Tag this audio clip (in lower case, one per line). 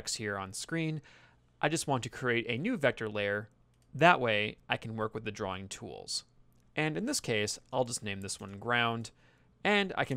speech